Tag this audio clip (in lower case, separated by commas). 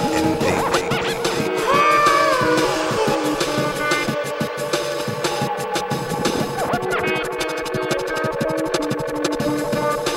inside a small room, speech, music